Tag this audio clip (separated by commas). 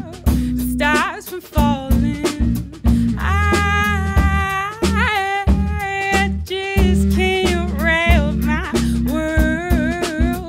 Music